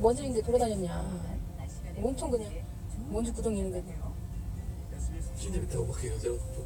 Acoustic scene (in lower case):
car